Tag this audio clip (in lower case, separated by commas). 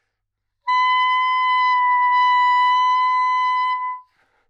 music, musical instrument, wind instrument